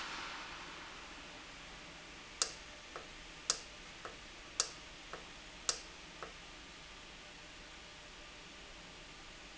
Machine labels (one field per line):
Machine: valve